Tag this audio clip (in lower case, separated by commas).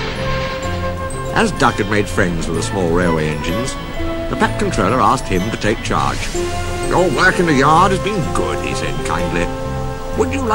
music, speech